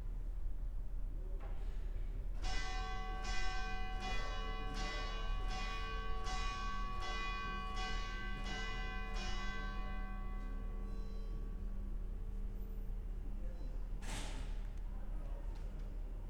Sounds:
church bell, bell

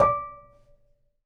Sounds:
domestic sounds, dishes, pots and pans

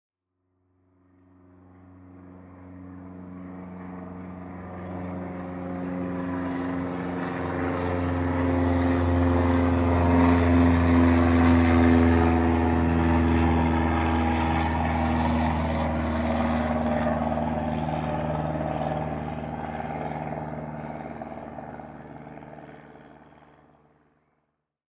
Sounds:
vehicle, airplane, aircraft

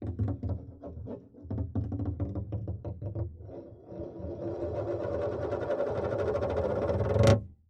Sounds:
tap

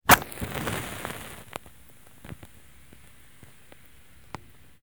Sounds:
fire

